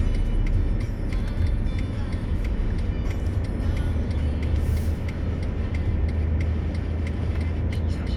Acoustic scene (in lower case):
car